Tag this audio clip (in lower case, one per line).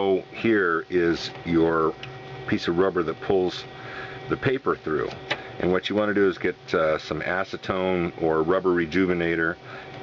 speech